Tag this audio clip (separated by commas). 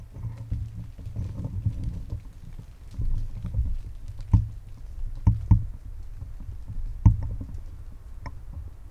Wind